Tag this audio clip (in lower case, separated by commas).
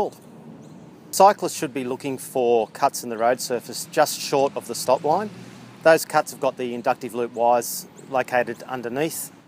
speech